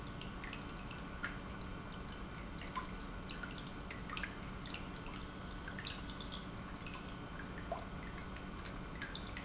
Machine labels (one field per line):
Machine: pump